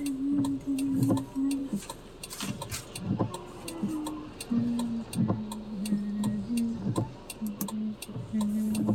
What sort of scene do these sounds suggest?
car